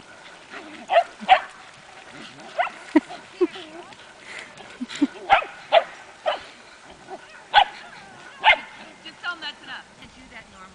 Dog barking and women laughing and speaking